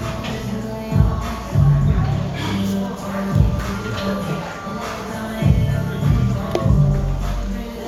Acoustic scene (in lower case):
cafe